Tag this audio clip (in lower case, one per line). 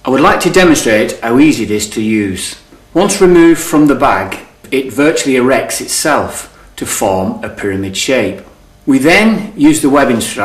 speech